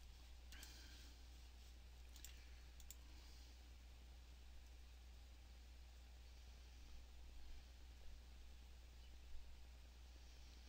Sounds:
clicking

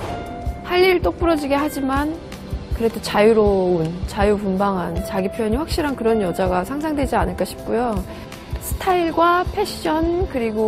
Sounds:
speech, music

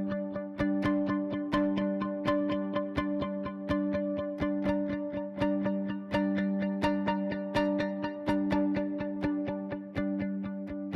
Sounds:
music

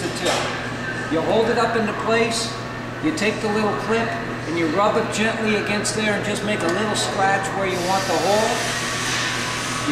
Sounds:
speech

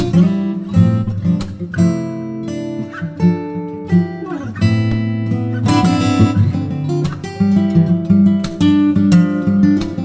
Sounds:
music, electric guitar, musical instrument

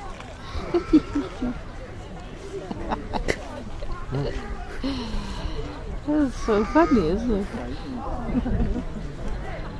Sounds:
speech

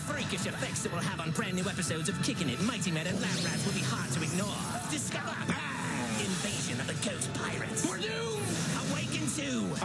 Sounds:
music, speech

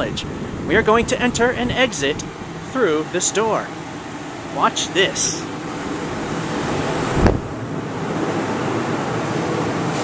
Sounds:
speech

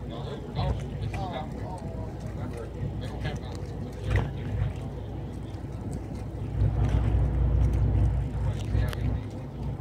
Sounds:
speech

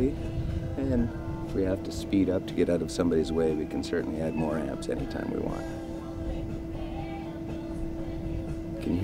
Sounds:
music, speech, speedboat, vehicle, water vehicle

